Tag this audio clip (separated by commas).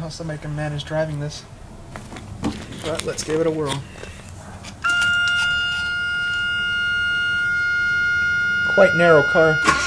Speech